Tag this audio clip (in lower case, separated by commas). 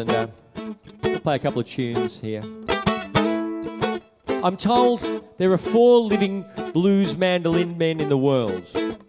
speech, music